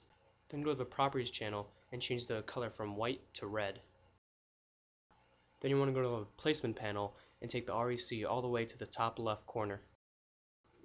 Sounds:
speech

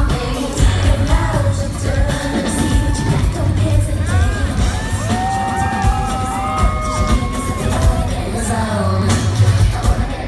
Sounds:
music

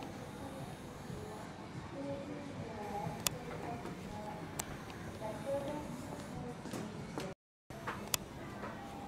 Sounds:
speech

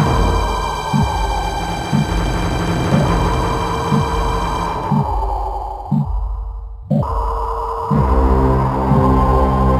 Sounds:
scary music
music

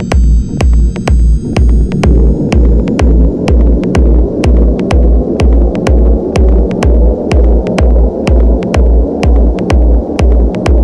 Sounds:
trance music
techno
music
house music
electronic music

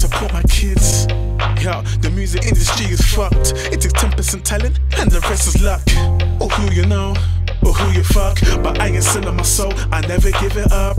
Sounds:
music

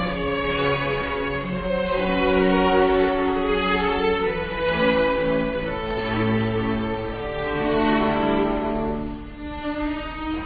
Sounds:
opera
music

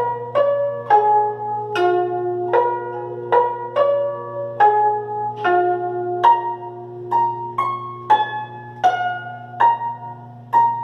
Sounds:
playing zither

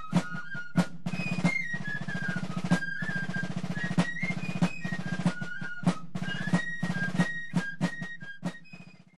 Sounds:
music

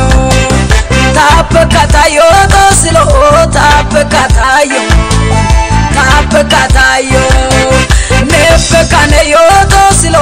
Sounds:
music of africa
music

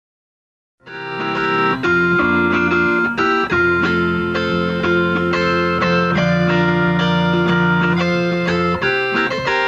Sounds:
music
musical instrument
inside a small room
plucked string instrument
tapping (guitar technique)
steel guitar

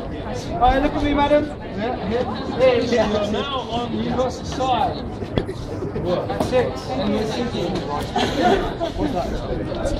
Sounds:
speech

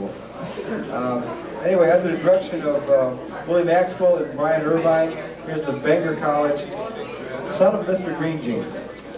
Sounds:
man speaking

